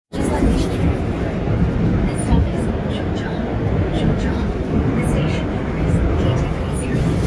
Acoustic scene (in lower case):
subway train